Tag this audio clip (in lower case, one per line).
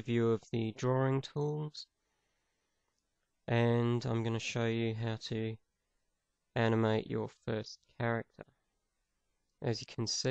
speech